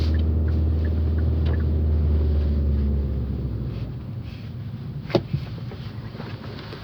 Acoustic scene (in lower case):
car